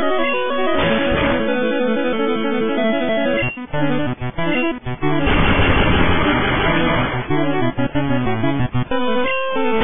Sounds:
Cacophony, Music

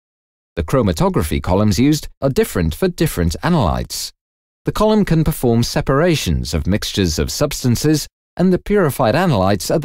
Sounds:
Speech

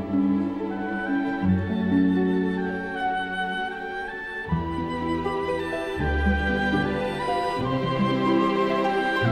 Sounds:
playing oboe

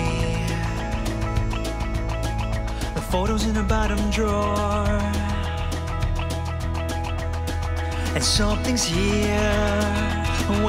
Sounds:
Music

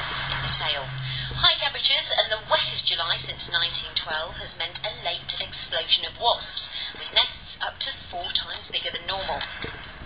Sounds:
Speech

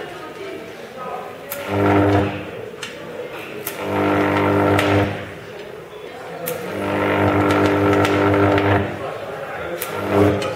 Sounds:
Speech

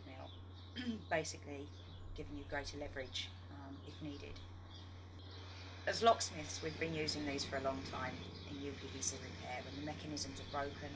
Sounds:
Speech

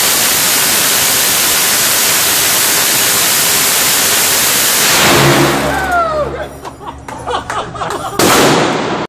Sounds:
Burst

